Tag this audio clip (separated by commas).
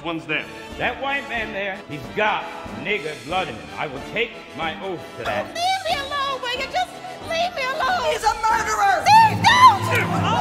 Music, Speech